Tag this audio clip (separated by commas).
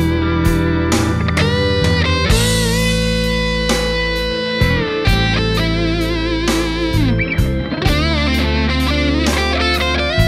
Music